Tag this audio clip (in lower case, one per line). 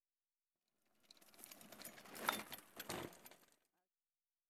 vehicle
bicycle